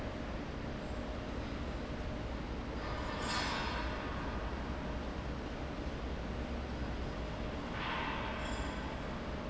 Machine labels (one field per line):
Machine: fan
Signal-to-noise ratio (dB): -6 dB